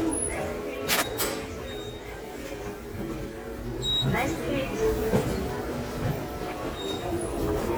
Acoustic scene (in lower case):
subway station